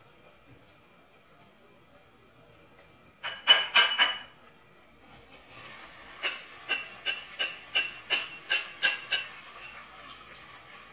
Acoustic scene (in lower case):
kitchen